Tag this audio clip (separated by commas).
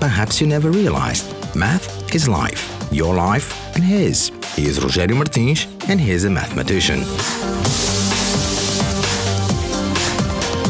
Music, Speech